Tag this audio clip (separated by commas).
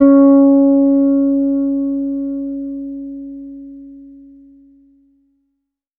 Bass guitar, Plucked string instrument, Music, Guitar, Musical instrument